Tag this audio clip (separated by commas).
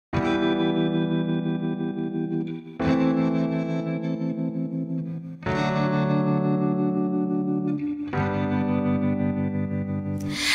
Music